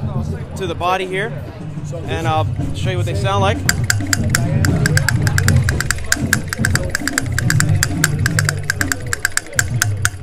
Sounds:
speech
music

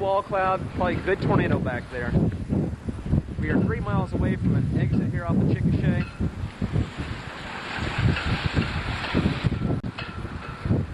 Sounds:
tornado roaring

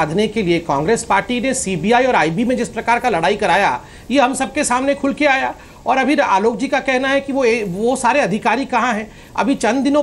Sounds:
speech

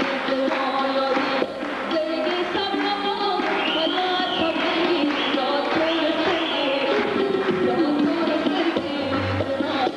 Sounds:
music

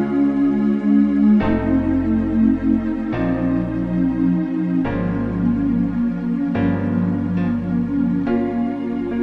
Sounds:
ambient music
music

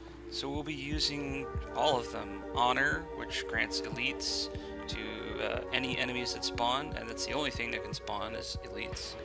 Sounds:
speech
music

